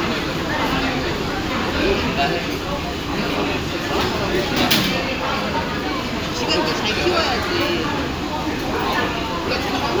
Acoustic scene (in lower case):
crowded indoor space